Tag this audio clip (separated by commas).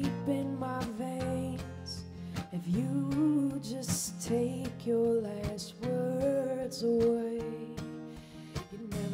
Music